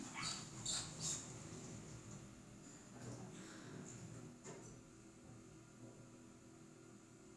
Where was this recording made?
in an elevator